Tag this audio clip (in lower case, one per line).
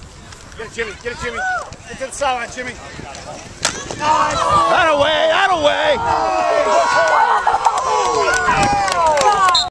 speech